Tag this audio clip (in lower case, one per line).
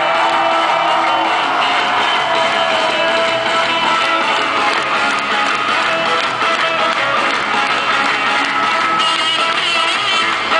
whoop
music